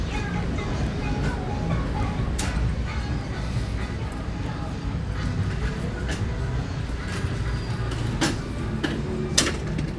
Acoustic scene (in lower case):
street